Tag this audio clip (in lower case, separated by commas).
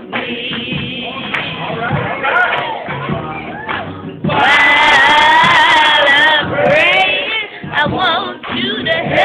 speech, male singing, music, female singing